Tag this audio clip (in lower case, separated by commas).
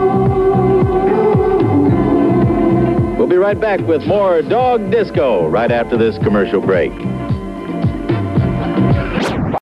disco, music, speech